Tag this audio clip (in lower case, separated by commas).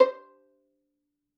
music, bowed string instrument, musical instrument